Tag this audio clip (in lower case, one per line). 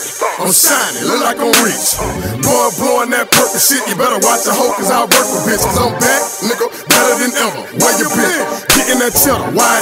music